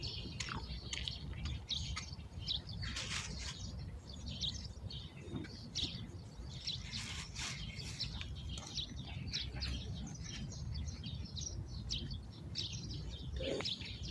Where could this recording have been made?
in a park